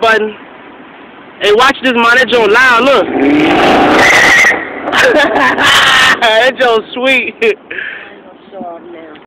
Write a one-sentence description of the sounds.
An adult male is speaking, a motor vehicle is revved up, and tires squeal